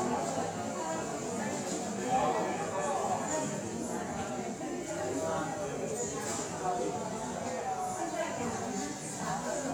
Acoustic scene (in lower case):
cafe